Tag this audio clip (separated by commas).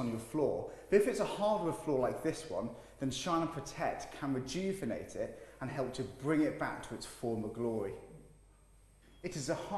Speech